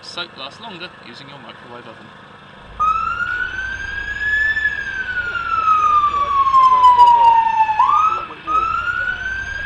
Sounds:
speech, emergency vehicle, police car (siren)

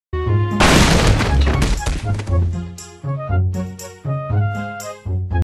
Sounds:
music

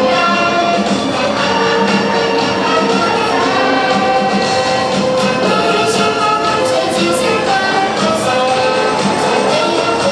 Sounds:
child singing, music, choir

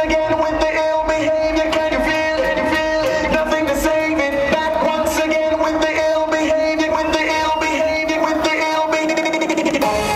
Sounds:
music

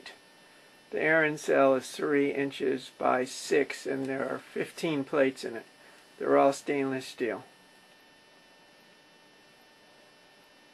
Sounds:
speech

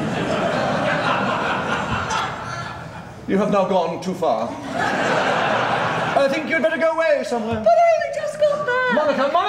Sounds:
speech, chuckle, snicker, people sniggering

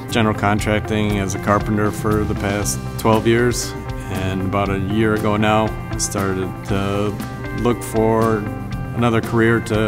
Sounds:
music, speech

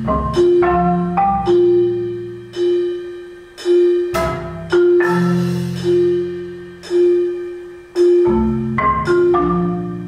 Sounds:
music

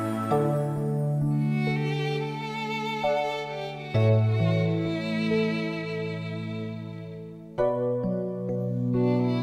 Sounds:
fiddle, musical instrument, music

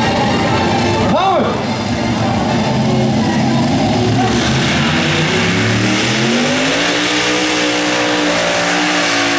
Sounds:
vehicle, music, vroom, speech

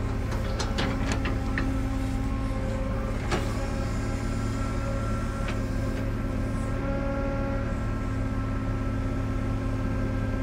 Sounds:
vehicle

